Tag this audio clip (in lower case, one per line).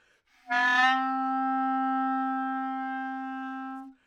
woodwind instrument
music
musical instrument